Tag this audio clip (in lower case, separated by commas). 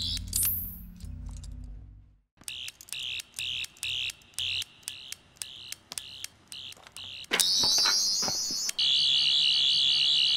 sound effect